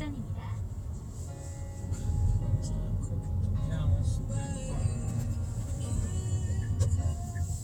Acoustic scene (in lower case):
car